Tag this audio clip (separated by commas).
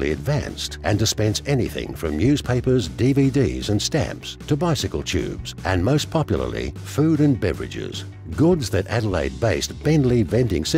Speech, Music